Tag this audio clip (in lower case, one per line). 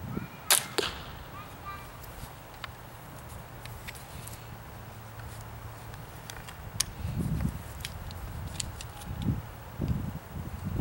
speech
outside, rural or natural